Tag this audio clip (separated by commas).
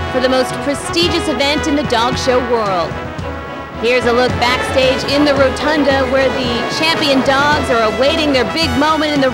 Speech, Music